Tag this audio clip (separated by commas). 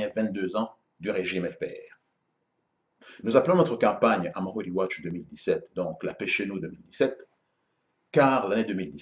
Speech